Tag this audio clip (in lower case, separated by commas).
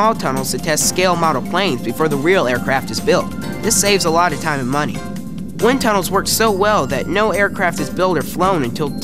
music, speech